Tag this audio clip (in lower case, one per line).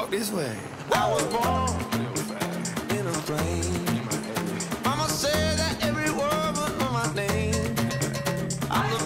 music